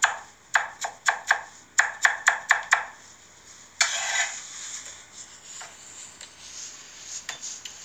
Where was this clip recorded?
in a kitchen